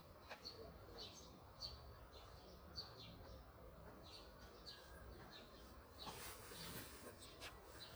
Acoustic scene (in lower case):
park